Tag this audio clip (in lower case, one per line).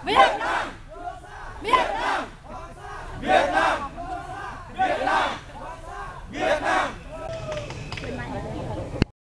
speech